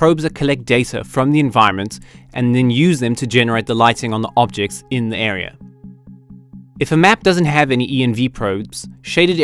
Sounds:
Music, Speech

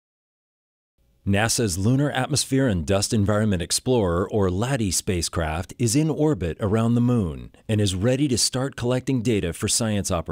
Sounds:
Speech

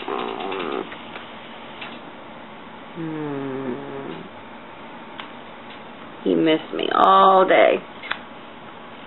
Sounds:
Speech

